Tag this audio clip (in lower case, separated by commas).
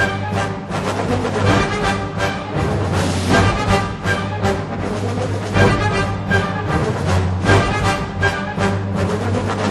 music